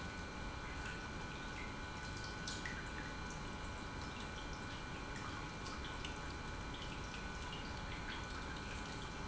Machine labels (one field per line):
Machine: pump